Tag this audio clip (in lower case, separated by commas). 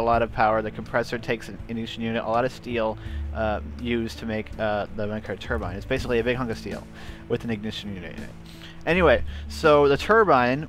music, speech